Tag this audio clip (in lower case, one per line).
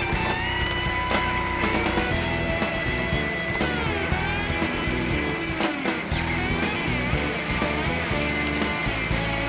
music